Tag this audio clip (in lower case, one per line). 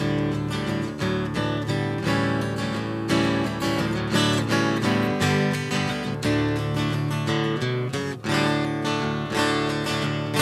music